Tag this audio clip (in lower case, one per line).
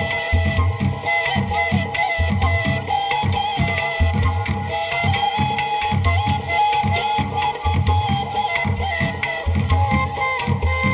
music
middle eastern music